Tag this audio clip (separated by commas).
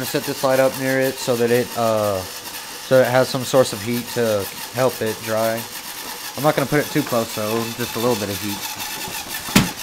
Speech, inside a small room